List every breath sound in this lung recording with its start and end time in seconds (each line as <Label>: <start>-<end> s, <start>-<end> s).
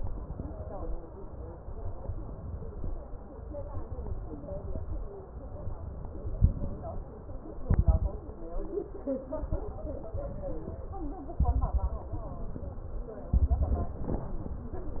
Inhalation: 0.00-0.89 s, 1.63-2.83 s, 3.34-4.63 s, 5.30-6.38 s, 9.56-10.74 s
Exhalation: 6.38-7.13 s, 11.42-12.32 s, 13.36-14.26 s
Crackles: 6.38-7.13 s, 11.42-12.32 s, 13.36-14.26 s